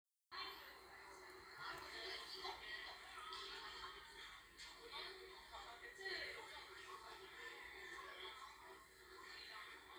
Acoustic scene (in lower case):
crowded indoor space